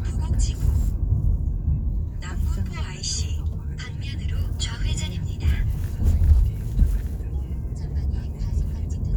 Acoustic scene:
car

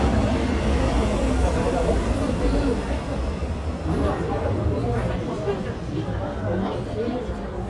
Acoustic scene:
subway station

